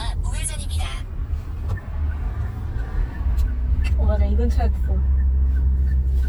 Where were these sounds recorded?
in a car